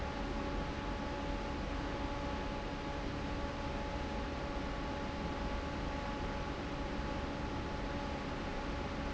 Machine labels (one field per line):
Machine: fan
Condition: normal